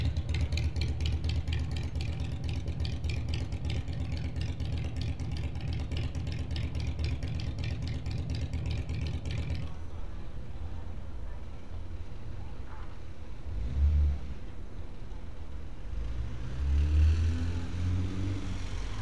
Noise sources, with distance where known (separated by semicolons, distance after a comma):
engine of unclear size